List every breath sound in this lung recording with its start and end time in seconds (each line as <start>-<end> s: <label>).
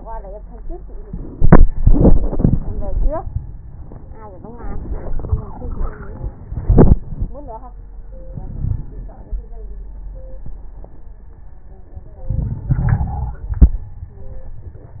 8.30-9.14 s: wheeze
12.28-13.46 s: inhalation
12.28-13.46 s: wheeze